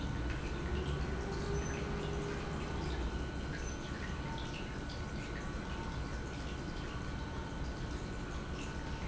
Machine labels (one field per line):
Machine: pump